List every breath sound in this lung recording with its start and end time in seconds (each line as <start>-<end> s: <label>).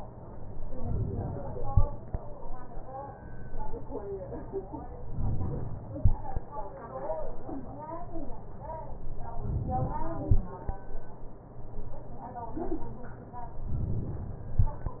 5.07-5.99 s: inhalation
9.41-10.27 s: inhalation
13.75-14.61 s: inhalation